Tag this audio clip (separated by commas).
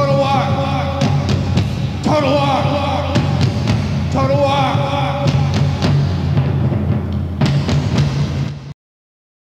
Music